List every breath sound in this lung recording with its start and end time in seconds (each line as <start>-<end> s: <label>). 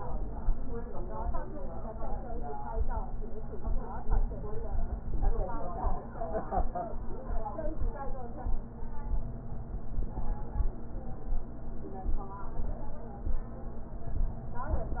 9.14-10.64 s: inhalation